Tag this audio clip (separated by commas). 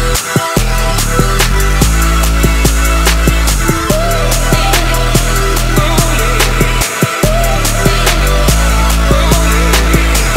Music